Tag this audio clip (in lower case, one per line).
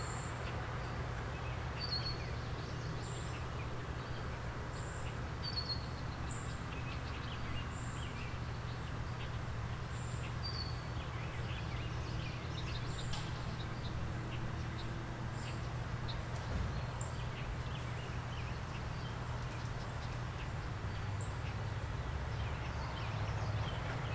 insect
animal
wild animals